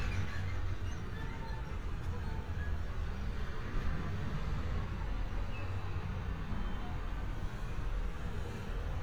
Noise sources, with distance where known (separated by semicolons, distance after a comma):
engine of unclear size